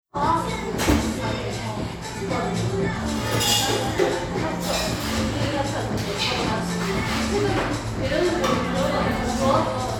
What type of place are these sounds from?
cafe